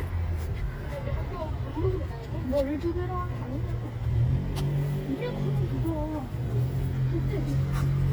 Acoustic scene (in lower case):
residential area